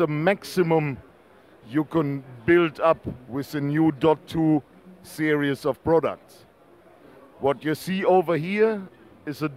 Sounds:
Speech

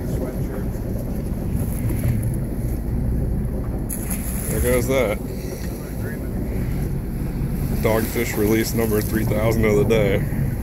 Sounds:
Speech, Wind noise (microphone)

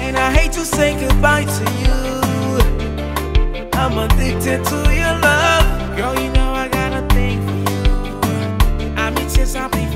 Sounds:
Music of Africa, Music

